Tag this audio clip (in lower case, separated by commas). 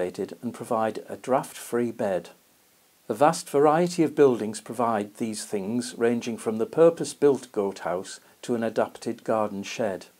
speech